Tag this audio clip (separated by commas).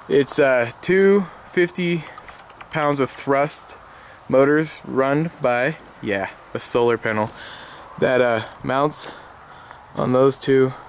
Speech